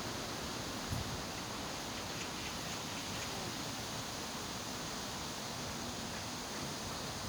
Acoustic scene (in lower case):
park